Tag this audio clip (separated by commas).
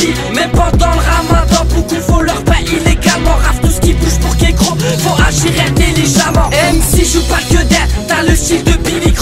Music